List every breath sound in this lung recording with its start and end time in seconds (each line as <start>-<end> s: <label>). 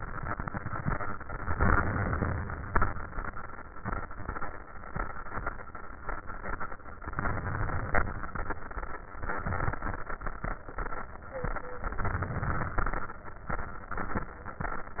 1.52-2.71 s: inhalation
7.12-8.30 s: inhalation
11.99-13.17 s: inhalation